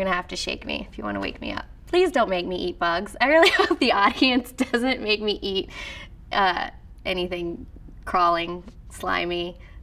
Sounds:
Speech

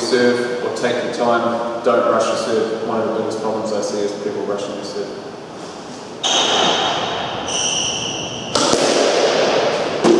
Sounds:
playing squash

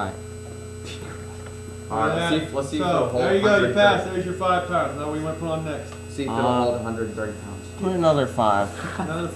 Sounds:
Speech

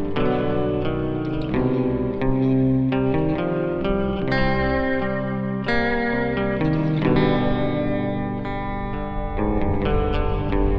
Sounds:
Guitar, Music, Echo

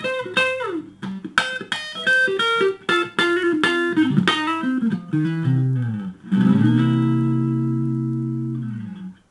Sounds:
Music, Musical instrument, Electric guitar, Plucked string instrument, Guitar

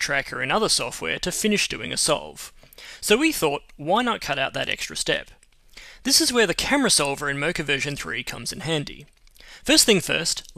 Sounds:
Speech

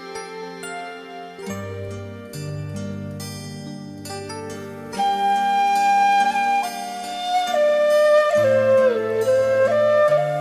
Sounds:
Music, Tender music

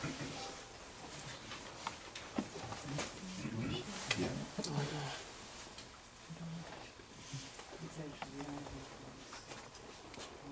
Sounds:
Speech

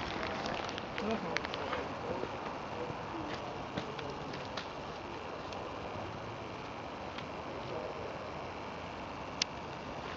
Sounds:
outside, rural or natural, Speech

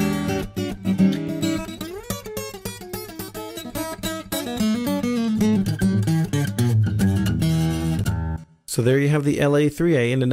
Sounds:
Music, Plucked string instrument

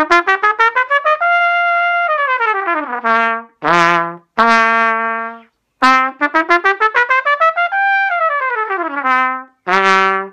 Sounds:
playing cornet

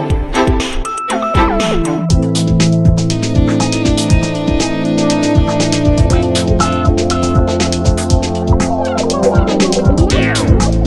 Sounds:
Music

